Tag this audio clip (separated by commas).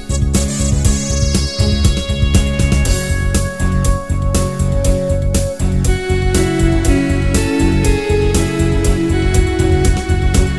Music